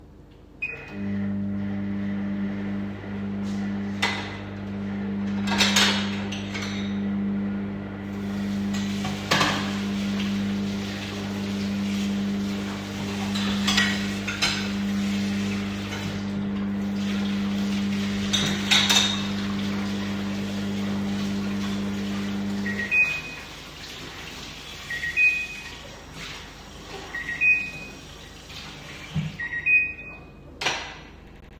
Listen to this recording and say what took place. The microwave starts and is running in the kitchen. I then start washing dishes, so running water and cutlery or dish sounds become audible while the microwave is still on. At the end, the microwave stops and its biping is audible.